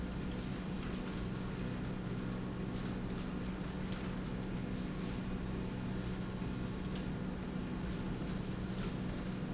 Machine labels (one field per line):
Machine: slide rail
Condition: normal